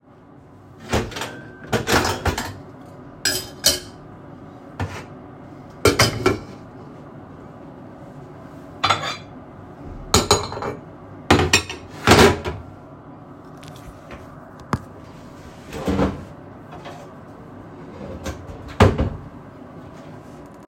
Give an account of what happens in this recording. take cultery, then open drawer and close it